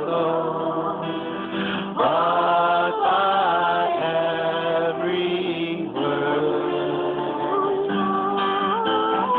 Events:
[0.00, 9.35] music
[0.01, 1.00] choir
[1.51, 1.93] breathing
[1.95, 7.82] choir
[7.36, 9.35] female singing

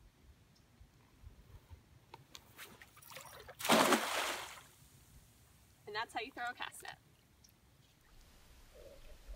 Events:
[0.00, 9.35] wind
[0.51, 0.58] clicking
[0.92, 1.06] surface contact
[1.38, 1.73] surface contact
[2.06, 2.14] clicking
[2.29, 2.35] clicking
[2.54, 2.65] surface contact
[2.70, 2.81] clicking
[2.93, 2.98] clicking
[2.99, 3.55] water
[3.55, 4.62] splatter
[5.83, 6.96] female speech
[6.40, 6.52] clicking
[6.79, 6.88] clicking
[7.42, 7.51] clicking
[7.81, 8.14] surface contact
[8.68, 9.35] surface contact

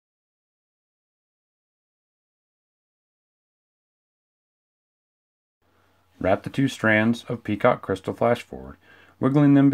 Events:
[5.57, 9.73] background noise
[6.11, 8.75] man speaking
[8.75, 9.14] breathing
[9.21, 9.73] man speaking

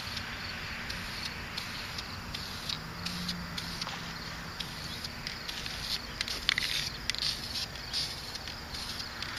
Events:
[0.00, 0.20] spray
[0.00, 9.35] cricket
[0.00, 9.35] motor vehicle (road)
[0.00, 9.35] wind
[0.85, 1.26] spray
[1.55, 1.99] spray
[2.28, 2.77] spray
[3.03, 3.30] spray
[3.54, 3.81] spray
[3.79, 3.92] generic impact sounds
[4.55, 5.06] spray
[4.85, 4.99] bird song
[5.16, 5.29] generic impact sounds
[5.42, 5.94] spray
[6.02, 6.15] bird song
[6.24, 6.84] spray
[6.44, 6.60] rattle
[6.89, 6.96] bird song
[7.04, 7.15] rattle
[7.20, 7.63] spray
[7.76, 7.88] bird song
[7.89, 8.34] spray
[8.32, 8.39] generic impact sounds
[8.71, 8.97] spray
[9.15, 9.25] generic impact sounds

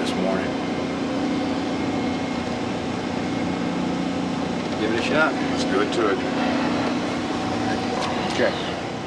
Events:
[0.00, 0.48] male speech
[0.00, 9.05] conversation
[0.00, 9.05] mechanisms
[4.77, 6.17] male speech
[7.97, 8.72] male speech

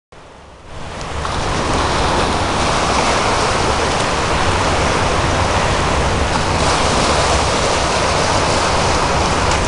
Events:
[0.09, 9.65] ocean
[0.67, 9.65] waves
[0.96, 1.05] tick
[6.27, 6.42] generic impact sounds

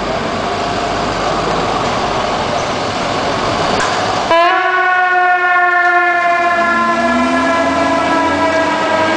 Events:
[0.00, 4.27] truck
[4.25, 9.15] fire truck (siren)
[6.06, 9.15] vroom

